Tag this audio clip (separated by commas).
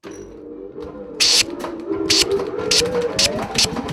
Tools